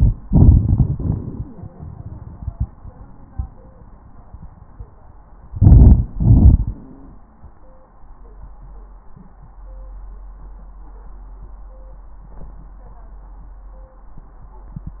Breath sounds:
0.25-4.01 s: exhalation
5.49-6.06 s: inhalation
6.15-6.72 s: exhalation
6.15-6.72 s: crackles

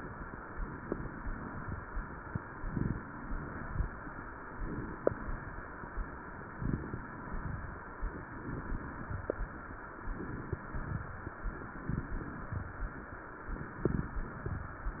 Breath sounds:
0.72-1.78 s: inhalation
0.72-1.78 s: crackles
2.64-3.70 s: inhalation
2.64-3.70 s: crackles
4.54-5.60 s: inhalation
4.54-5.60 s: crackles
6.55-7.61 s: inhalation
6.55-7.61 s: crackles
8.20-9.26 s: inhalation
8.20-9.26 s: crackles
10.07-11.14 s: inhalation
10.07-11.14 s: crackles
11.73-12.79 s: inhalation
11.73-12.79 s: crackles
13.53-14.59 s: inhalation
13.53-14.59 s: crackles

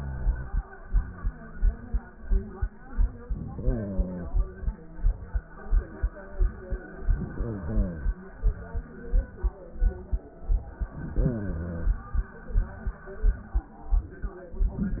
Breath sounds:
3.33-4.69 s: inhalation
6.93-8.29 s: inhalation
10.86-12.22 s: inhalation

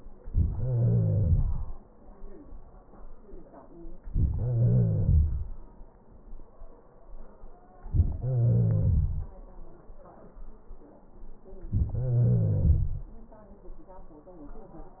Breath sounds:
0.52-1.42 s: wheeze
4.46-5.45 s: wheeze
8.18-9.32 s: wheeze
11.96-13.11 s: wheeze

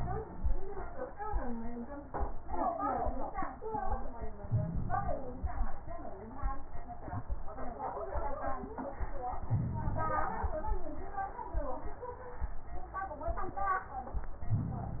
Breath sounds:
4.41-5.70 s: inhalation
9.44-10.73 s: inhalation
14.38-15.00 s: inhalation

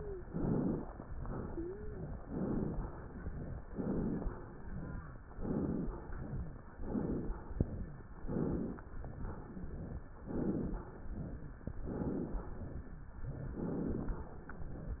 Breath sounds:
0.00-0.25 s: wheeze
0.21-0.82 s: inhalation
1.39-2.09 s: wheeze
2.24-2.85 s: inhalation
2.90-3.61 s: exhalation
3.72-4.33 s: inhalation
4.48-5.18 s: exhalation
5.33-5.94 s: inhalation
6.01-6.72 s: exhalation
6.79-7.40 s: inhalation
7.57-8.16 s: exhalation
8.23-8.84 s: inhalation
9.12-10.06 s: exhalation
10.24-10.85 s: inhalation
10.98-11.65 s: exhalation
11.86-12.47 s: inhalation
12.60-13.26 s: exhalation
13.56-14.27 s: inhalation

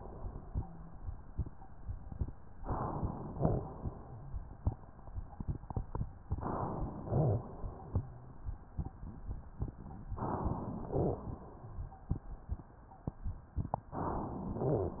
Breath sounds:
2.60-3.33 s: inhalation
3.37-3.83 s: exhalation
6.26-6.92 s: inhalation
6.94-7.51 s: exhalation
10.15-10.80 s: inhalation
10.82-11.38 s: exhalation
13.99-14.63 s: inhalation
14.66-15.00 s: exhalation

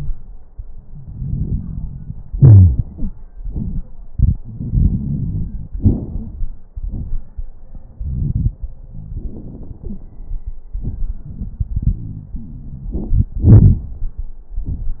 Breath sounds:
0.84-2.28 s: inhalation
0.84-2.28 s: crackles
2.33-2.80 s: wheeze
2.33-3.17 s: exhalation
4.45-5.76 s: inhalation
4.45-5.76 s: wheeze
5.74-6.63 s: exhalation
5.74-6.63 s: crackles
12.89-13.36 s: inhalation
12.89-13.36 s: crackles
13.40-14.35 s: exhalation
13.40-14.35 s: crackles

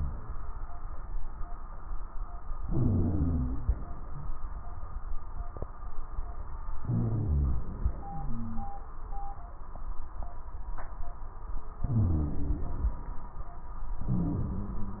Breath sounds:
2.61-3.69 s: inhalation
2.61-3.69 s: wheeze
6.82-8.74 s: inhalation
6.82-8.74 s: wheeze
11.85-12.79 s: wheeze
11.85-12.95 s: inhalation
14.04-14.97 s: inhalation
14.04-14.97 s: wheeze

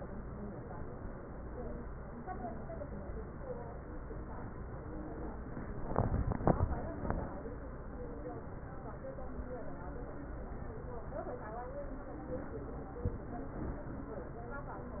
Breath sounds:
6.91-7.38 s: inhalation

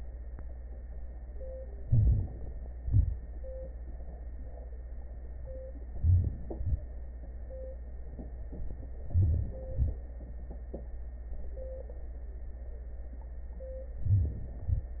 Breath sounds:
1.84-2.26 s: inhalation
2.81-3.14 s: exhalation
6.00-6.33 s: inhalation
6.59-6.91 s: exhalation
9.12-9.58 s: inhalation
9.70-10.01 s: exhalation
14.06-14.38 s: inhalation
14.62-14.94 s: exhalation

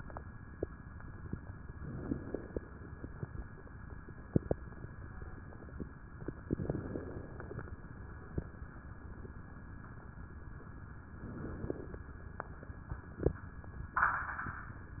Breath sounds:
1.75-2.87 s: inhalation
1.75-2.87 s: crackles
6.51-7.63 s: inhalation
6.51-7.63 s: crackles
11.20-12.01 s: inhalation
11.20-12.01 s: crackles

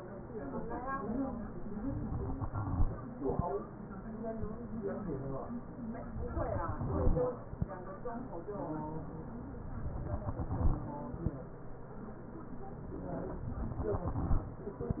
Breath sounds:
2.25-3.49 s: exhalation
6.38-7.63 s: exhalation
10.19-11.44 s: exhalation

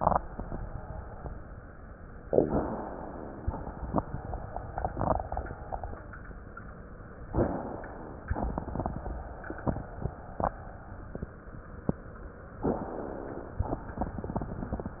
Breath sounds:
2.22-3.46 s: inhalation
7.24-8.29 s: inhalation
12.56-13.61 s: inhalation

